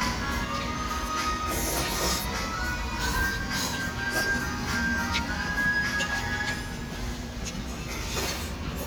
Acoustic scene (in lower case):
restaurant